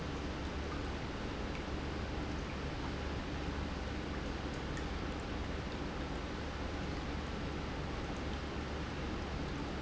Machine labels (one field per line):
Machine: pump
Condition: normal